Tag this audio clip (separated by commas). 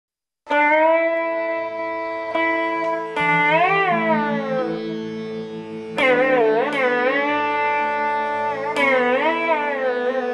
Music